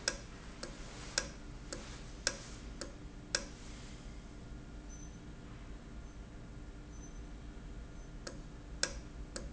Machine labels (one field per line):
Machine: valve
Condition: normal